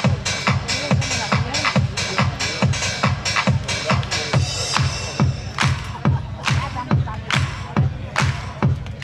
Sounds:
music, speech, musical instrument

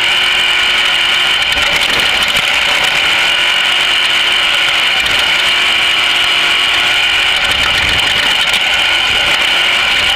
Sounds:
outside, rural or natural, vehicle

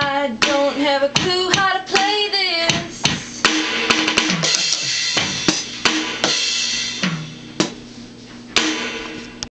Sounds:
musical instrument, music, drum, drum kit

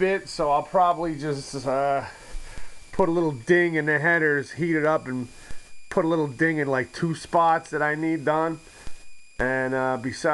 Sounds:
speech

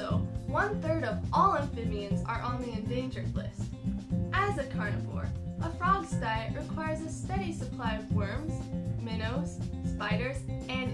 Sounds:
speech, music

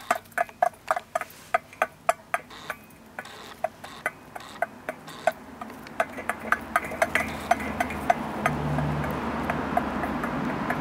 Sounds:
bird

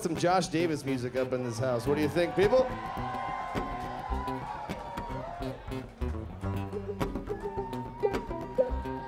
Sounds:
speech, country, music

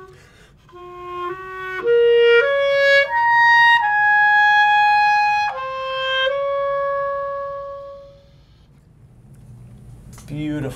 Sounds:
music, playing clarinet, wind instrument, inside a small room, clarinet, musical instrument

